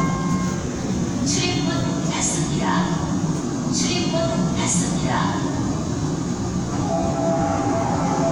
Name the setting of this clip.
subway train